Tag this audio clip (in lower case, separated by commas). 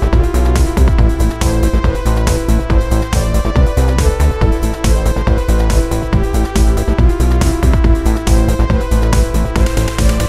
music